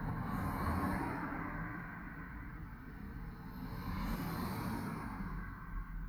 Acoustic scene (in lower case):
residential area